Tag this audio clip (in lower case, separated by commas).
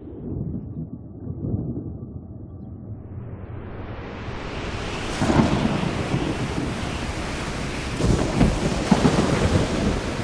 sound effect, rustle, clatter